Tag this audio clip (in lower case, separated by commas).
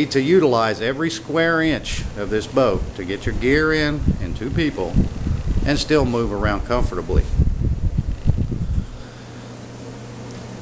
speech